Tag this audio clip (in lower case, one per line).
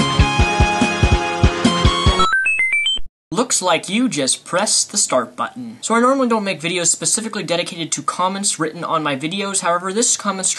music
speech
inside a small room